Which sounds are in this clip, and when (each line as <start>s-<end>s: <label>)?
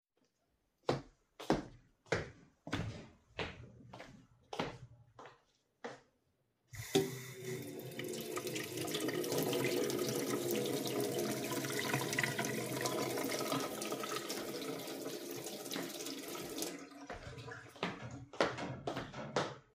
0.4s-6.5s: footsteps
6.7s-18.4s: running water
17.3s-19.7s: footsteps